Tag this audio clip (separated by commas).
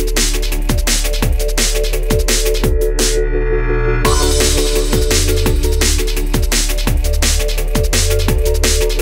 Bass drum, Drum kit, Musical instrument, Music, Drum